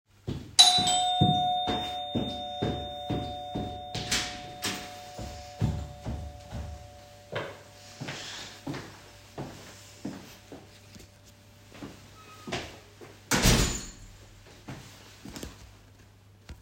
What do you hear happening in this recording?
The recorder remains static near the entrance. A bell rings, footsteps approach the door, and the door is opened or closed. The scene resembles answering the door.